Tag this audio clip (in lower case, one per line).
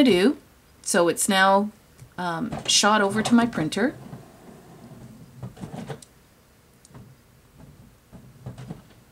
speech